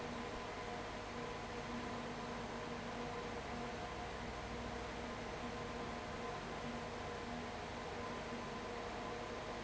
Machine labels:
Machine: fan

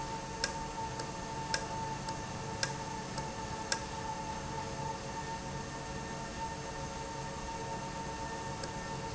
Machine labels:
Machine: valve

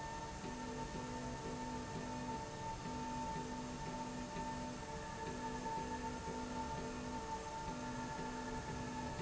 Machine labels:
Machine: slide rail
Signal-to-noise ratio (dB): 0 dB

